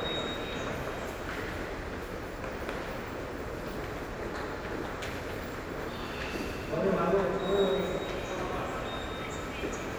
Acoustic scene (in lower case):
subway station